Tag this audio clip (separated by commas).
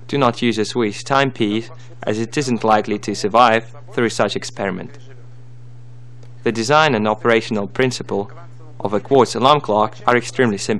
Speech